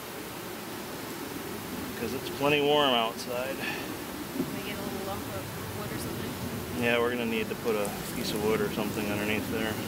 A man and woman speaking as insects buzz around